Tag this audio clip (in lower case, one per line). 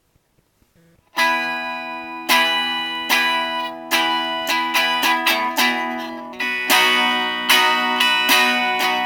guitar
plucked string instrument
music
acoustic guitar